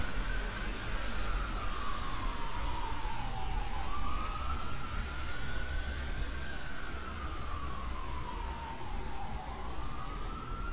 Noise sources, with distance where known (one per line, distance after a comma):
siren, far